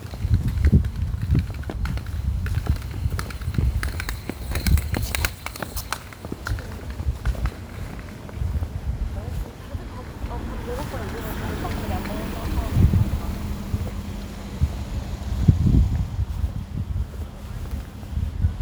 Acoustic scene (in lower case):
residential area